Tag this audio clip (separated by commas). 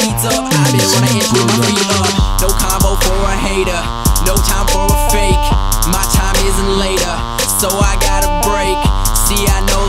Independent music, Rhythm and blues, Music